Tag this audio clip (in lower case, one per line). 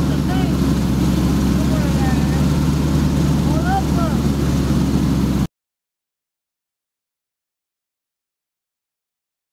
speech